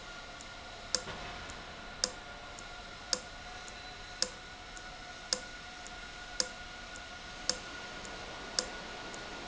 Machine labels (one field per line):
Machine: valve